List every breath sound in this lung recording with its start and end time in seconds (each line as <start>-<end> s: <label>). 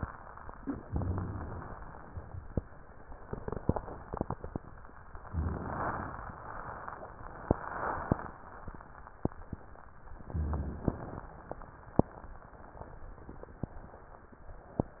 0.85-1.73 s: inhalation
0.85-1.73 s: crackles
5.17-6.31 s: inhalation
5.17-6.31 s: crackles
10.13-11.28 s: inhalation
10.13-11.28 s: crackles